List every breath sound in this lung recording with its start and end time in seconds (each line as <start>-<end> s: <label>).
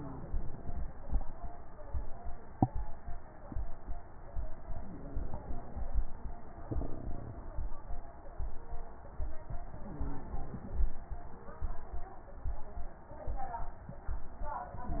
0.00-1.19 s: inhalation
0.00-1.19 s: crackles
4.77-5.96 s: inhalation
4.77-5.96 s: crackles
9.71-10.96 s: inhalation
9.71-10.96 s: crackles